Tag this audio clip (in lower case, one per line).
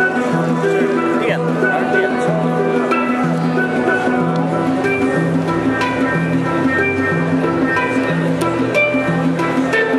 speech
music